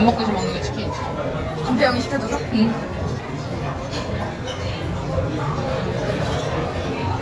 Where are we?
in a restaurant